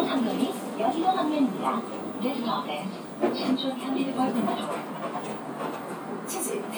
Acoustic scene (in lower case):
bus